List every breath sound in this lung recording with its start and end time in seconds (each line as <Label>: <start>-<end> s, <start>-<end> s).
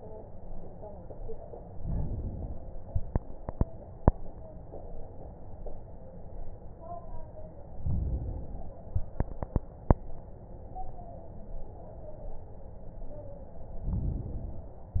Inhalation: 1.67-2.60 s, 7.73-8.83 s, 13.87-14.97 s